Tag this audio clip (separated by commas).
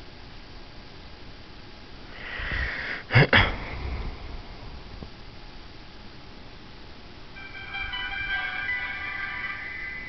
Music, inside a small room